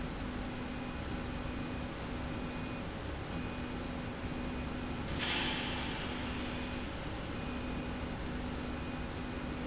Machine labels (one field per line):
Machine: slide rail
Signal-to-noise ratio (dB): -6 dB